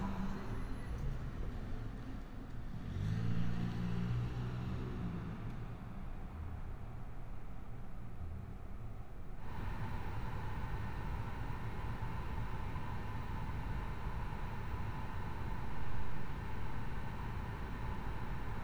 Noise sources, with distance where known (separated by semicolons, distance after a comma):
background noise